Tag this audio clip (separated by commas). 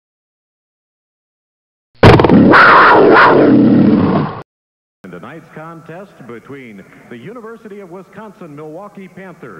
inside a public space, Speech